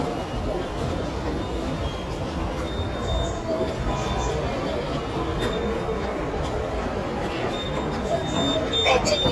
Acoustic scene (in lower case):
subway station